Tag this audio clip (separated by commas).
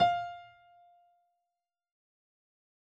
Piano, Musical instrument, Music, Keyboard (musical)